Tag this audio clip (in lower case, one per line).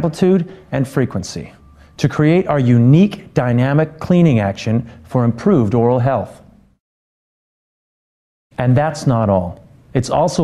speech